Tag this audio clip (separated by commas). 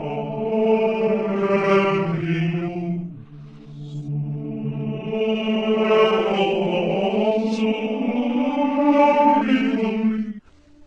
Mantra